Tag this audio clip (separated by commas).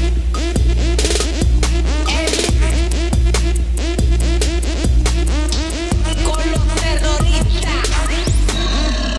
Dance music, Music